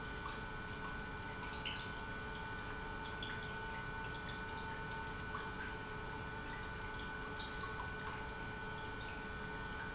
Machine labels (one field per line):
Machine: pump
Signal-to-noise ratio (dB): 6 dB